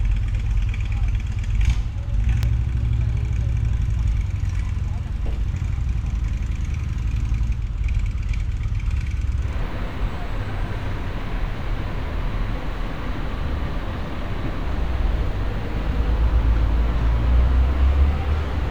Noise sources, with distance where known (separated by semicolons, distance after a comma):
engine of unclear size